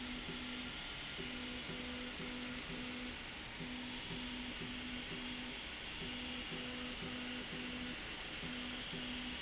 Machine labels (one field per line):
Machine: slide rail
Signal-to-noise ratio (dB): 0 dB